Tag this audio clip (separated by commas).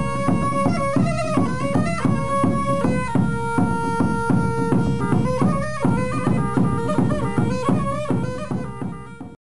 Music